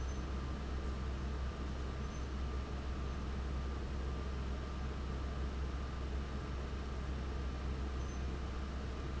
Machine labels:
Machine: fan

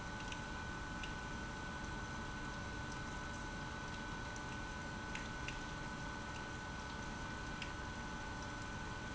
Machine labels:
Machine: pump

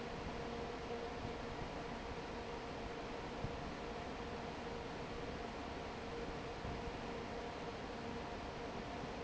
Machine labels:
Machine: fan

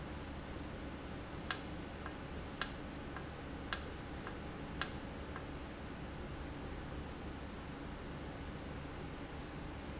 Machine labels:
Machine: valve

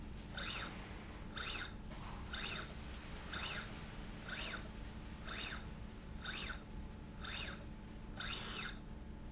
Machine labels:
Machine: slide rail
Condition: normal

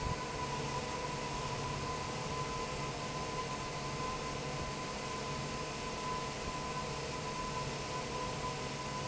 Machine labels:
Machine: fan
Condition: normal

